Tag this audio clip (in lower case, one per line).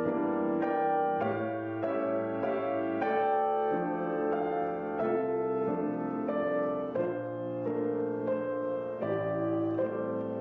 music